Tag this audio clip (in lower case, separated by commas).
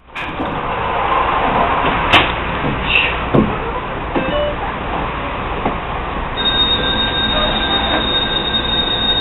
outside, urban or man-made